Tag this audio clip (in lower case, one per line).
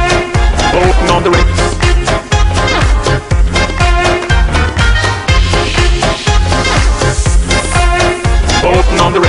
music
funny music